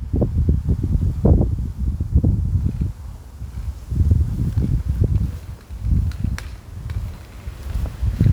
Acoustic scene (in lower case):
residential area